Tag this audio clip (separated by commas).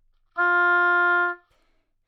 Musical instrument, Music, Wind instrument